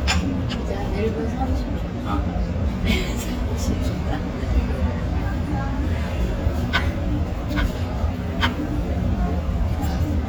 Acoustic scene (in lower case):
restaurant